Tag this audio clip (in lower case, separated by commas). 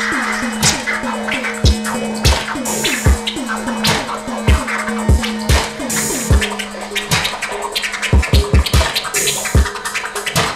scratching (performance technique), music